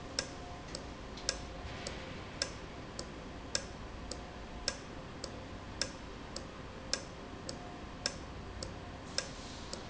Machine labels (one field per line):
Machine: valve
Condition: normal